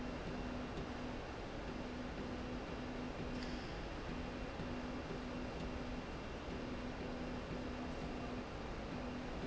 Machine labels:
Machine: slide rail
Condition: normal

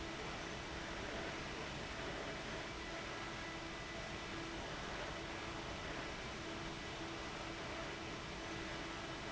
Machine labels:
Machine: fan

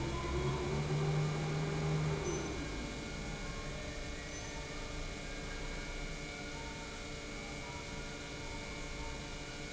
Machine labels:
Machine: pump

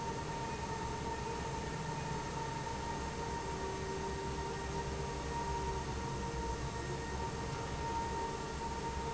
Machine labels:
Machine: fan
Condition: normal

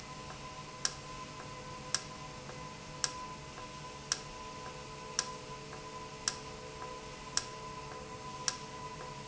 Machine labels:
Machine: valve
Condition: normal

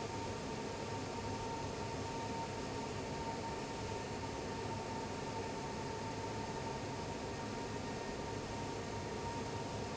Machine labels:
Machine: fan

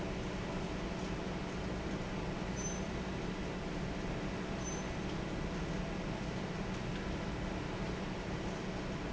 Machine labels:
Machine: fan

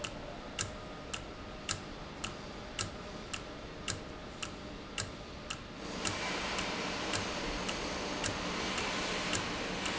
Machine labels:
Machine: valve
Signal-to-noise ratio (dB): -6 dB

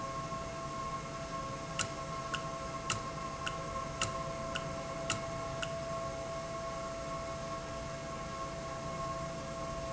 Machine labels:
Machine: valve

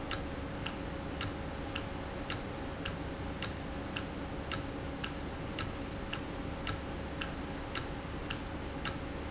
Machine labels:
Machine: valve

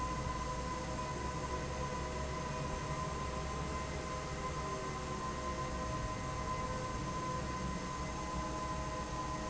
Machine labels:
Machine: fan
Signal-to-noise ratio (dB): -6 dB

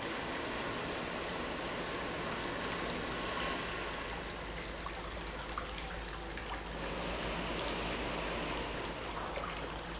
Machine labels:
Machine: pump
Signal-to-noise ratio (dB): -6 dB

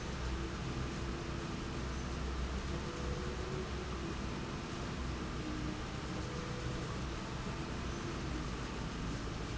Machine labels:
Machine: slide rail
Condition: normal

